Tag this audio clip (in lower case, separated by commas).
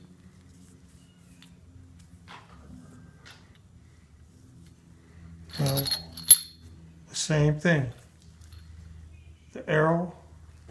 speech